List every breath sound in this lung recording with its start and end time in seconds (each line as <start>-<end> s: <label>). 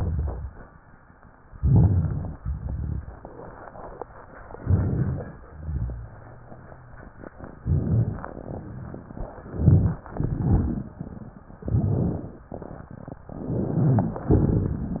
1.54-2.38 s: inhalation
1.54-2.38 s: crackles
2.40-3.24 s: exhalation
2.40-3.24 s: crackles
4.56-5.40 s: inhalation
4.56-5.40 s: crackles
5.42-7.06 s: exhalation
5.42-7.06 s: rhonchi
7.60-8.36 s: inhalation
7.60-8.36 s: rhonchi
9.42-10.04 s: inhalation
9.42-10.04 s: rhonchi
10.14-11.40 s: exhalation
10.14-11.40 s: wheeze
11.62-12.40 s: inhalation
11.62-12.40 s: rhonchi
13.30-14.28 s: inhalation
13.30-14.28 s: crackles